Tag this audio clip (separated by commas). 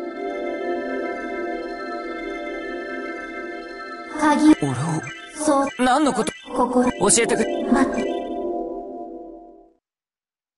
Speech, Music